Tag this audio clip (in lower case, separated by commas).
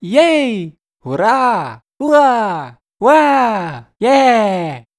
cheering, human group actions